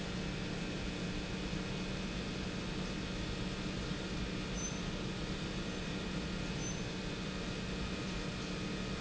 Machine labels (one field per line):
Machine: pump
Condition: abnormal